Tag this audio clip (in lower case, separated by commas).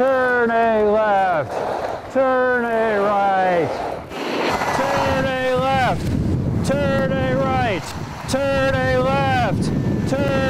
skiing